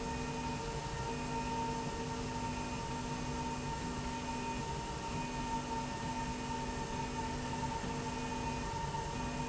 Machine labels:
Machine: slide rail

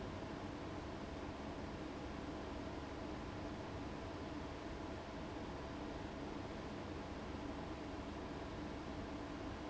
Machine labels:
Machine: fan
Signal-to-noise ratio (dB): 6 dB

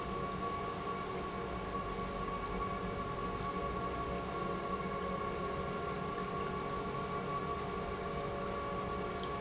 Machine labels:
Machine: pump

